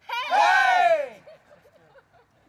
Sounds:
Cheering, Human group actions

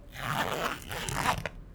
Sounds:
Domestic sounds, Zipper (clothing)

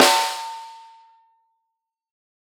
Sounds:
Drum, Music, Musical instrument, Percussion, Snare drum

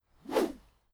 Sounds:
swish

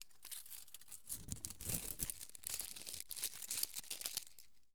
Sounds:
Crumpling

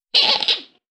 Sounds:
Squeak

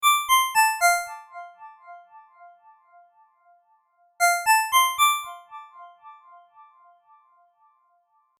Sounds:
Alarm, Telephone, Ringtone

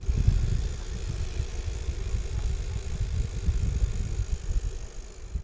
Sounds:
Bicycle, Vehicle

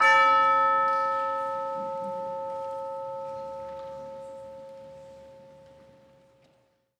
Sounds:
Percussion, Musical instrument, Music

